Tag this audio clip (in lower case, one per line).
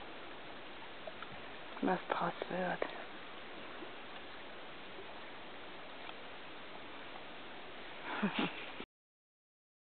speech
vehicle
canoe
boat